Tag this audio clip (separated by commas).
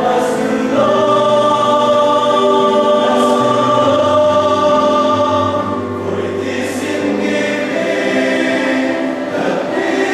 Gospel music, Singing, Choir, Music, Christian music